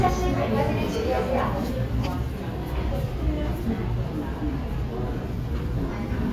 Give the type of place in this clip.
subway station